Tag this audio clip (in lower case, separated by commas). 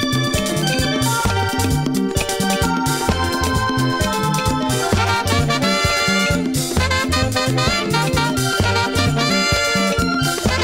music, reggae